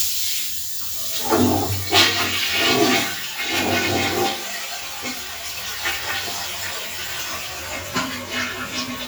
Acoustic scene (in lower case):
restroom